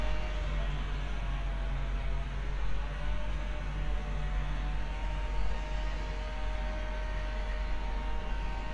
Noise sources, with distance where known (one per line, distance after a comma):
unidentified powered saw, far